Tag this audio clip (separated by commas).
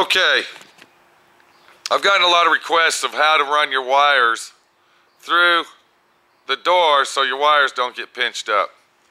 Speech